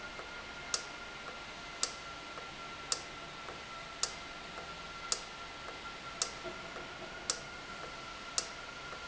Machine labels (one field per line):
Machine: valve